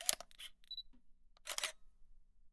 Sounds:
mechanisms, camera

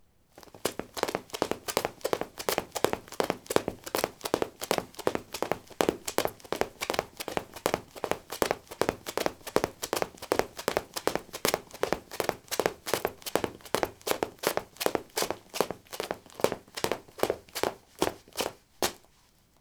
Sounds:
run

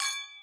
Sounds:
chink, glass

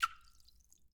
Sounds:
liquid, splash

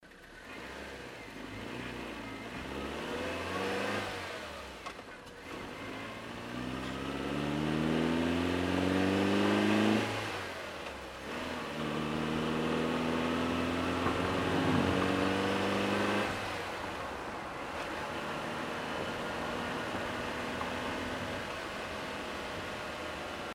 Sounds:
engine, accelerating

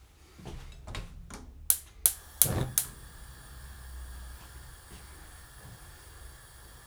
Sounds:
hiss, fire

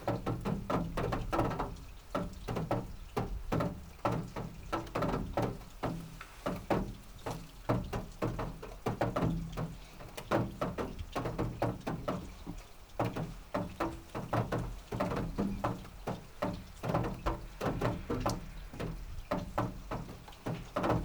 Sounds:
water, rain

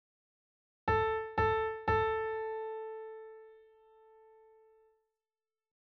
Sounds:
piano, music, keyboard (musical), musical instrument

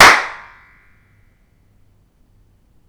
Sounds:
hands, clapping

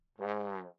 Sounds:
musical instrument, brass instrument, music

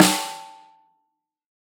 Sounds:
drum, music, musical instrument, percussion, snare drum

